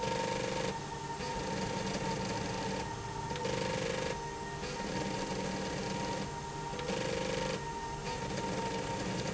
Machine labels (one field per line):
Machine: slide rail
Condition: abnormal